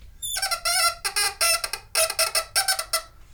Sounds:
squeak

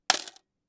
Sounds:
coin (dropping), home sounds

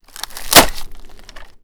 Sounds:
wood

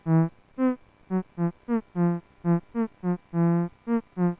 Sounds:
music, musical instrument

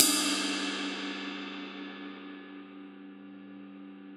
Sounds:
cymbal, crash cymbal, percussion, musical instrument, music

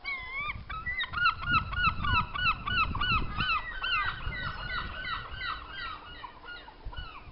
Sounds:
animal, bird, wild animals, wind, gull

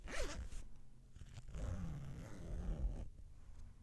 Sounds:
domestic sounds, zipper (clothing)

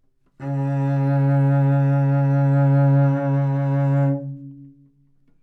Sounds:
bowed string instrument, music, musical instrument

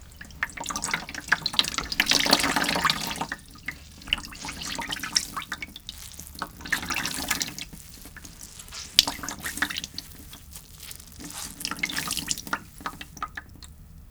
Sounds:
drip, liquid

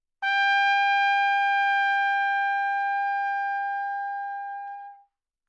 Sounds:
music, musical instrument, brass instrument, trumpet

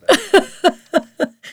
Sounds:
giggle, human voice, laughter

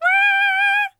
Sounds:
singing, human voice

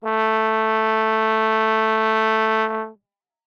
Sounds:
brass instrument, music, musical instrument

